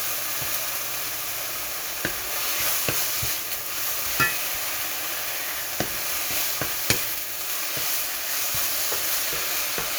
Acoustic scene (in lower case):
kitchen